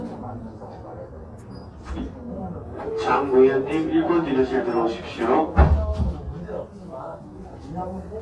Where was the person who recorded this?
in a crowded indoor space